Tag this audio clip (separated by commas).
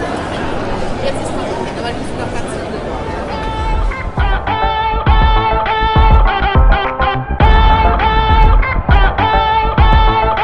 Music, Speech